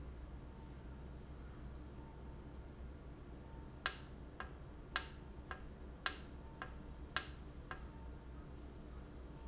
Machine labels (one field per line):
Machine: valve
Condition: normal